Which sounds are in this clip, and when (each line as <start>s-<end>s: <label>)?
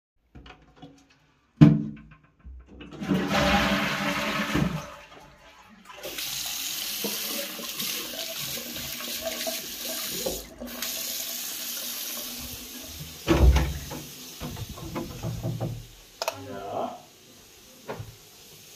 2.4s-5.9s: toilet flushing
5.8s-18.8s: running water
13.3s-14.1s: door
16.1s-16.4s: light switch
17.8s-18.2s: door